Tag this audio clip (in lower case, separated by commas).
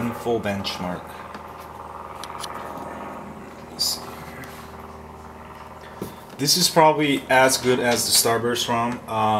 speech, inside a small room